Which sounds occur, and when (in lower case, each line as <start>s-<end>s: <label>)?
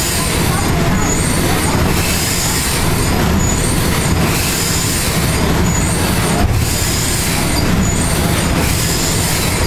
0.0s-9.6s: mechanisms
0.1s-1.9s: human voice
0.9s-1.3s: squeal
3.3s-3.6s: squeal
5.6s-5.9s: squeal
7.5s-8.1s: squeal